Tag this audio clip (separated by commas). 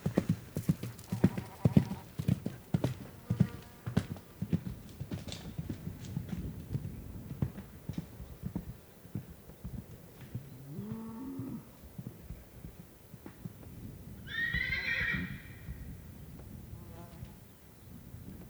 Animal, livestock